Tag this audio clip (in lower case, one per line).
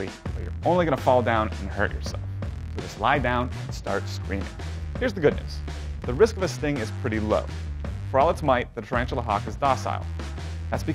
music
speech